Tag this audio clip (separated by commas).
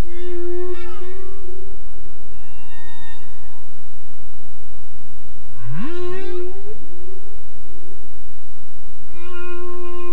whale calling